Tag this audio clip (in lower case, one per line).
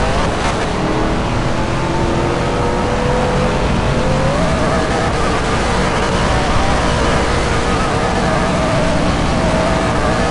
vehicle
car
motor vehicle (road)